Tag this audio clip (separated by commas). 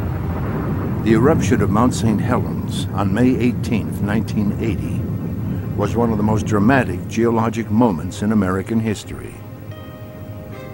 volcano explosion